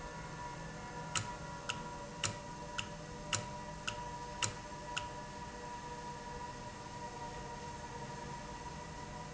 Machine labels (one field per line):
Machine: valve